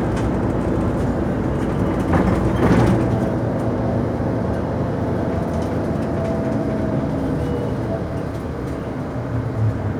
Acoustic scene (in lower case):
bus